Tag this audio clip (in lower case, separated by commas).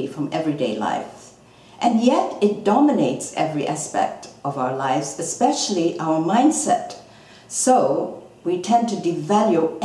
speech